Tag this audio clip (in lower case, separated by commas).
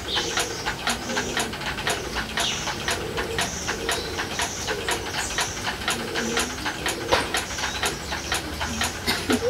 inside a small room, coo